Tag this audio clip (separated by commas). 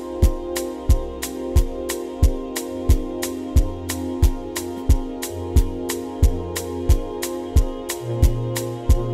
Music